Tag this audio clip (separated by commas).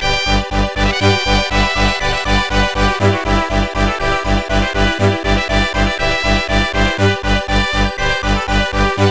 Music, Soundtrack music